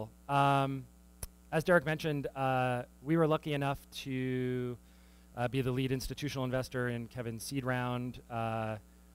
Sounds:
Speech

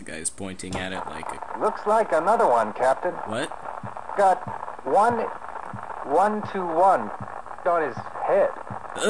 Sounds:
Radio, Speech

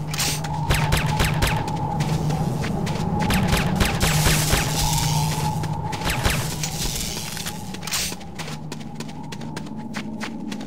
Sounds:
footsteps

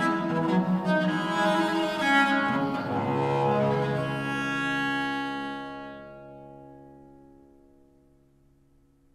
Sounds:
String section

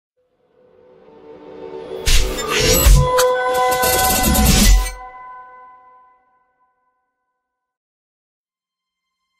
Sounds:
swoosh

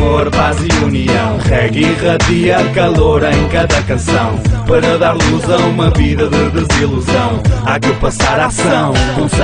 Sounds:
Music

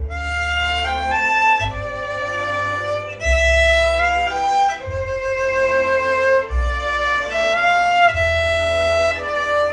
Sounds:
Music

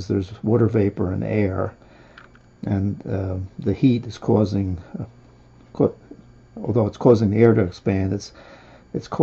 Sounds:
Speech, Drip

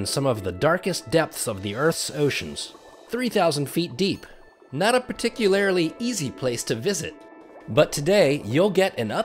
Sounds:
Speech

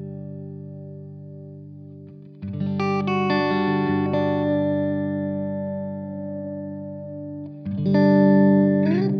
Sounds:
Synthesizer, Music, Ambient music

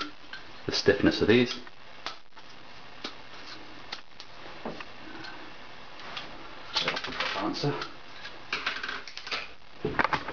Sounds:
Speech, inside a small room

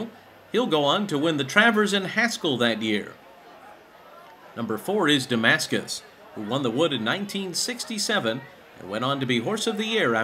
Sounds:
Speech

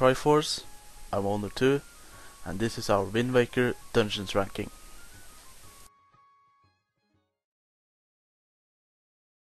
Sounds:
Music, Speech

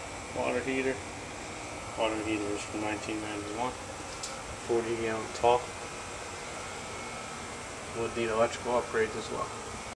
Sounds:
Speech

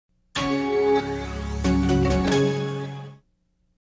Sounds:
Music

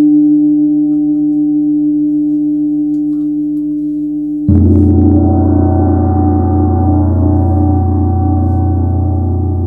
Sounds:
playing gong

